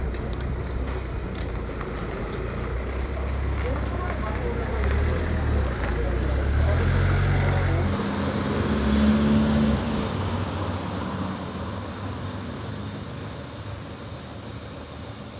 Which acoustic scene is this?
residential area